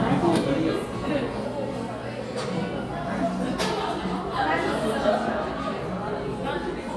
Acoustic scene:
crowded indoor space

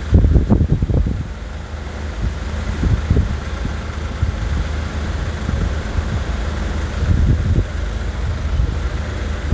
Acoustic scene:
street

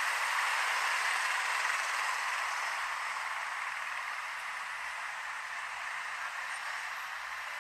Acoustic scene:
street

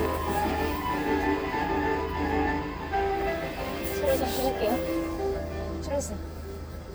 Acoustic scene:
car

